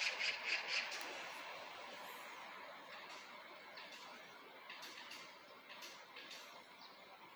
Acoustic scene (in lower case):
park